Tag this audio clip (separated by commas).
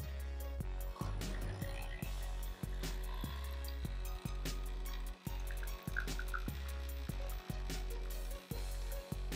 Percussion, Bass drum, Drum kit, Rimshot, Drum, Snare drum